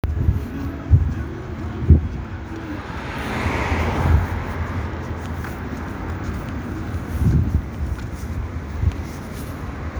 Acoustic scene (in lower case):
street